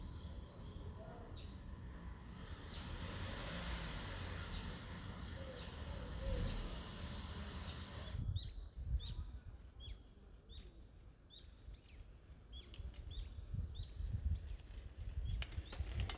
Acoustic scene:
residential area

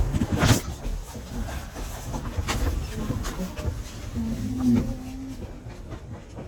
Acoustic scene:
elevator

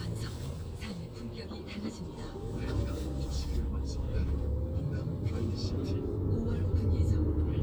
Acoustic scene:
car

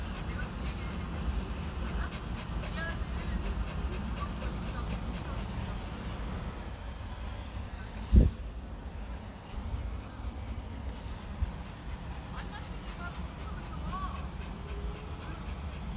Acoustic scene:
park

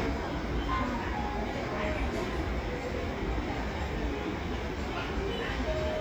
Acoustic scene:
cafe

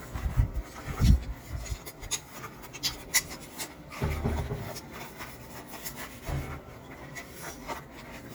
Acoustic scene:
kitchen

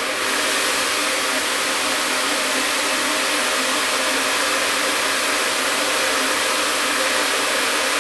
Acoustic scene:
restroom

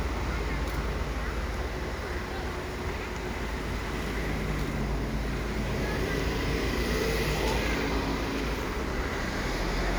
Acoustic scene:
residential area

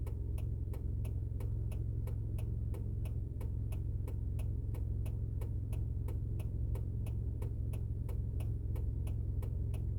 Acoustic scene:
car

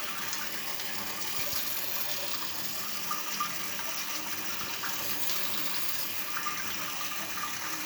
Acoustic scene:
restroom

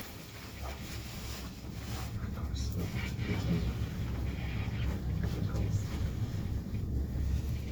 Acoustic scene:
elevator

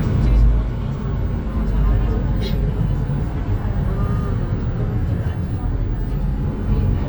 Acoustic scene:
bus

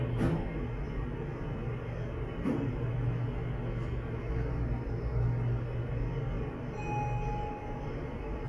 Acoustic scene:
elevator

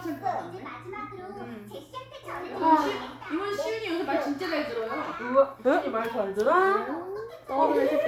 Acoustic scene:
crowded indoor space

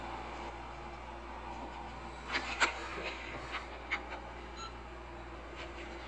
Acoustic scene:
elevator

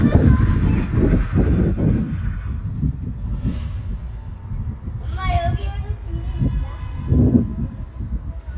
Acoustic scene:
residential area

